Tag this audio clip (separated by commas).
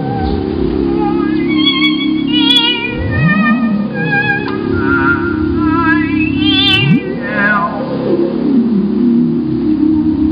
Music, Synthesizer